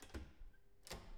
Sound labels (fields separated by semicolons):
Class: door; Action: opening